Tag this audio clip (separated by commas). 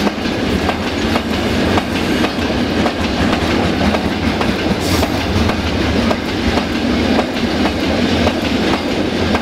train wagon